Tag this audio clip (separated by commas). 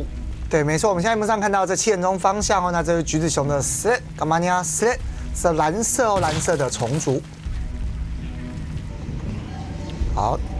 Music, Speech